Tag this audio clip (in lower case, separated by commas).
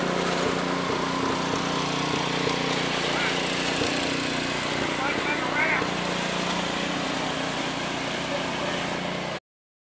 speech, heavy engine (low frequency)